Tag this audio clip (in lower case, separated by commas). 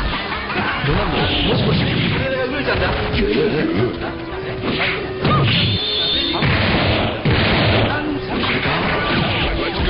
speech, music